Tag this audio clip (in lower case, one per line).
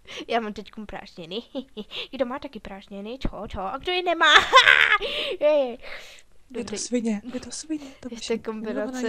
speech